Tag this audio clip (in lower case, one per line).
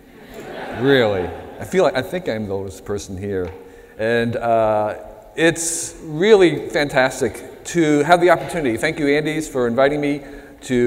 speech